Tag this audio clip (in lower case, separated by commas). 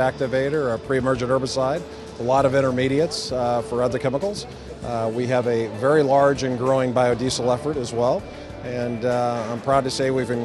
music, speech